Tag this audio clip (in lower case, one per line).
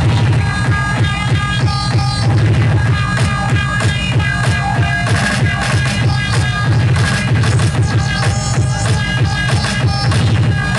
music